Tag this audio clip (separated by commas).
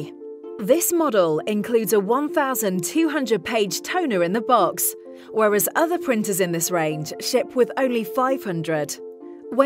Speech, Music